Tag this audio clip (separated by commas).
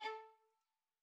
Bowed string instrument, Musical instrument, Music